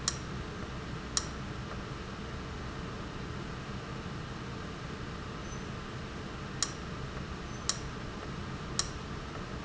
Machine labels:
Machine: valve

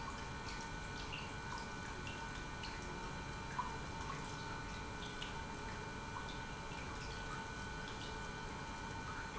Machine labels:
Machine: pump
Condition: normal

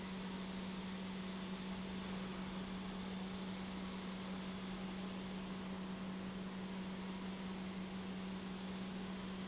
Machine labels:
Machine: pump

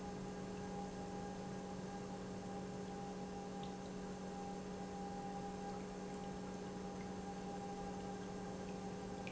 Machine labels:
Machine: pump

